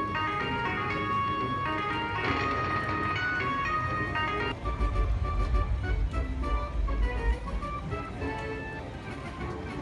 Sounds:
slot machine

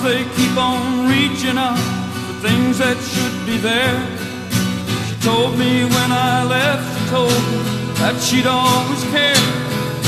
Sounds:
music

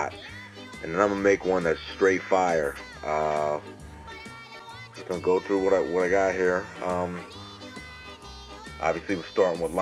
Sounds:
speech, music

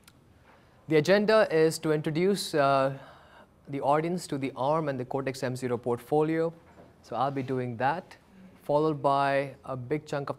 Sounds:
speech

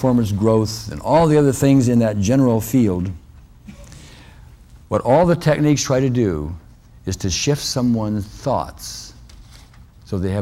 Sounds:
writing, speech

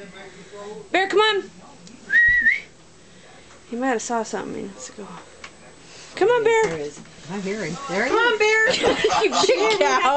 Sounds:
speech

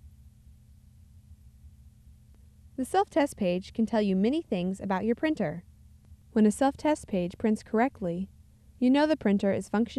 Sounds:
speech

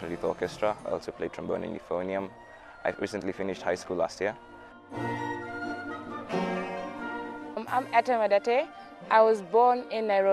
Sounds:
music, orchestra, speech

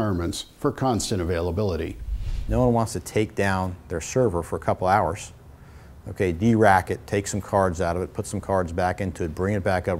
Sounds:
speech

